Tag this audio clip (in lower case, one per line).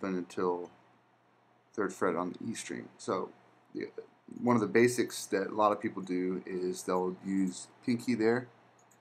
speech